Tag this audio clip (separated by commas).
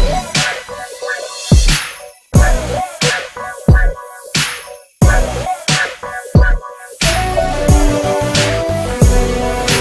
Hip hop music, Music